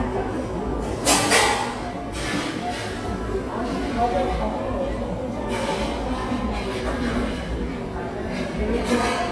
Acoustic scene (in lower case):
cafe